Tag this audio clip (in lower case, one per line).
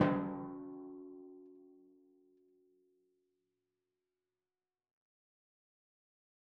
musical instrument
drum
percussion
music